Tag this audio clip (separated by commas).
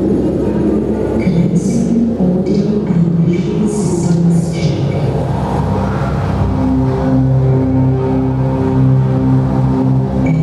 Music, Speech